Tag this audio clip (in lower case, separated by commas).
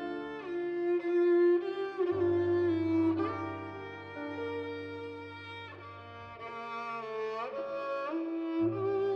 fiddle, music, musical instrument